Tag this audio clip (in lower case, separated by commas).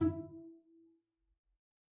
bowed string instrument, music, musical instrument